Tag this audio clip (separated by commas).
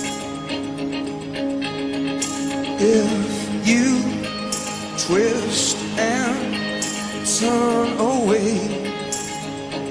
Music